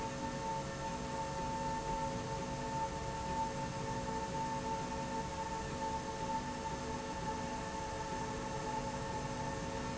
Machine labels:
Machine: slide rail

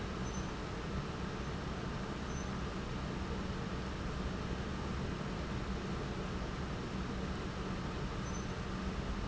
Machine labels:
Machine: pump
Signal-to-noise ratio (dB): -6 dB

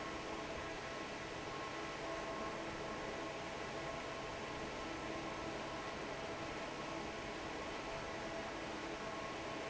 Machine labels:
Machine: fan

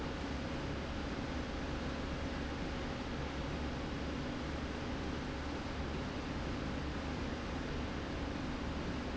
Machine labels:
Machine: slide rail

